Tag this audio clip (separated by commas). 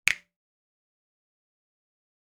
Hands, Finger snapping